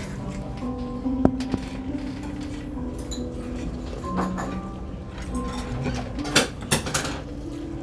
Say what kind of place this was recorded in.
restaurant